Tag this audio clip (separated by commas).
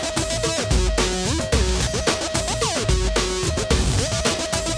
Music